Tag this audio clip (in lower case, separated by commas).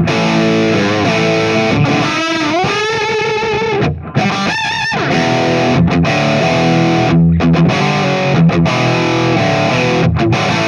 music